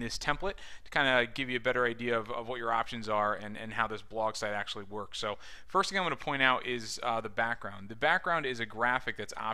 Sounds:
Speech

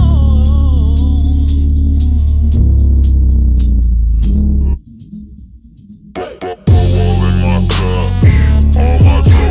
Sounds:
Music, Hip hop music

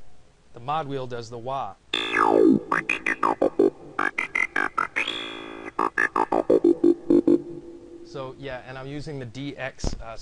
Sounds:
Synthesizer, Sampler, Musical instrument, Music, Speech

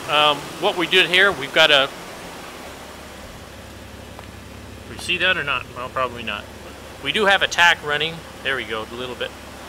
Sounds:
Heavy engine (low frequency), Speech

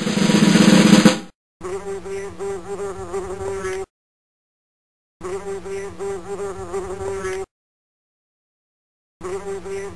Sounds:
housefly, bee or wasp, Insect

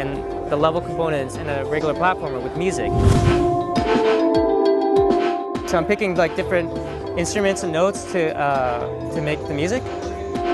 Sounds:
Music, Speech

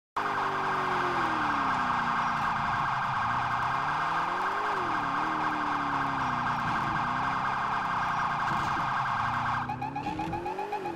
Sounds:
Car

